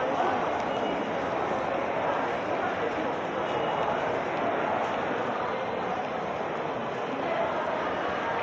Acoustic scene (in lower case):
crowded indoor space